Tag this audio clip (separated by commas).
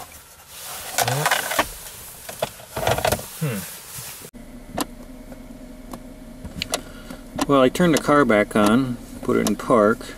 Vehicle, Speech